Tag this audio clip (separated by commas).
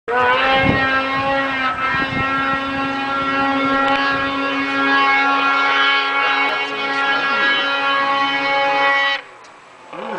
Vehicle